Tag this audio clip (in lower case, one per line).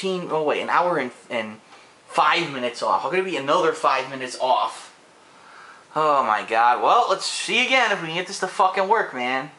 speech